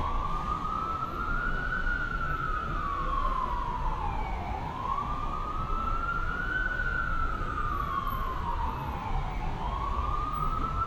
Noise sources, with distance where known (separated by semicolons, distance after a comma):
siren